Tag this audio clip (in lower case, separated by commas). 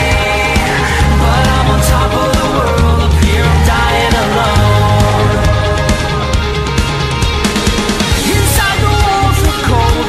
music